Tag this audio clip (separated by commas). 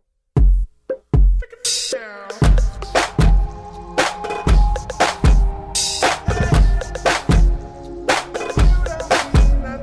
Music